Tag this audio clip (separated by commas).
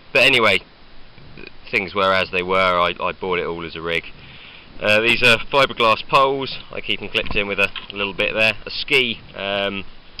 Speech